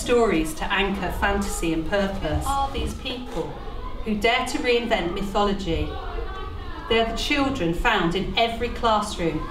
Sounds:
speech

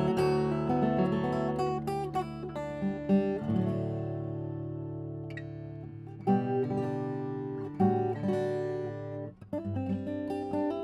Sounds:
music
acoustic guitar

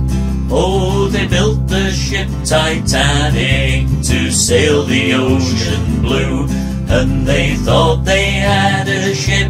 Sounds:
music

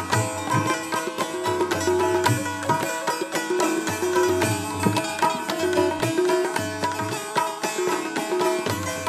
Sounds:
traditional music
music

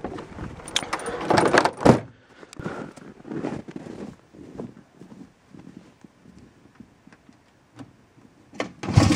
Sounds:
outside, rural or natural
car
vehicle

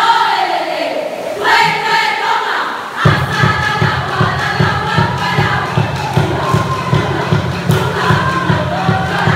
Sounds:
choir
music

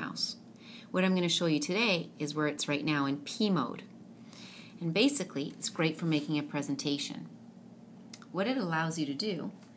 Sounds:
speech

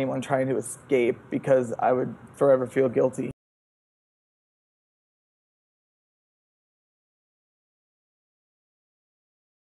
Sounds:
speech

